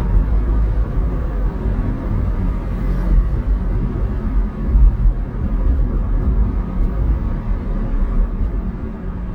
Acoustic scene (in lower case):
car